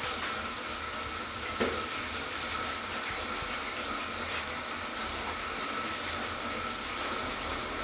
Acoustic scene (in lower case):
restroom